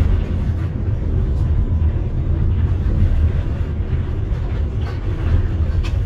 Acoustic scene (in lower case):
bus